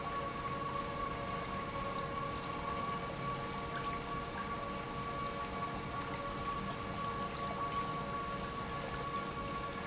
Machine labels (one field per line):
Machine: pump